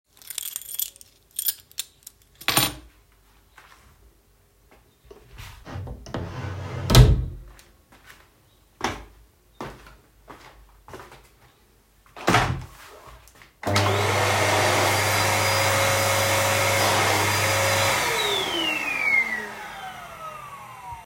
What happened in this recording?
The device was placed on a stable surface. I first handled a keychain, then opened and closed the door. After that, footsteps were audible and I turned on the vacuum cleaner. The target events occurred one after another without overlap.